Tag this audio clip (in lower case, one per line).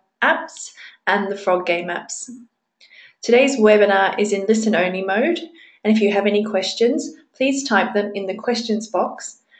speech